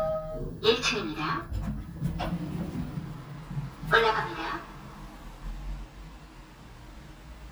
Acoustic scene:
elevator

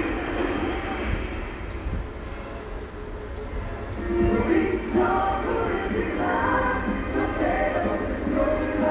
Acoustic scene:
subway station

